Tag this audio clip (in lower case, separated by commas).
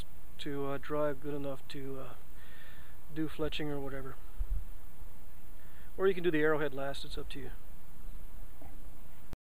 speech